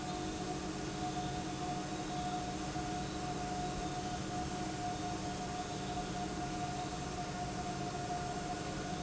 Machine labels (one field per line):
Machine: pump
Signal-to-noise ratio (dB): -6 dB